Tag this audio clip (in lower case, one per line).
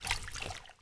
splash
liquid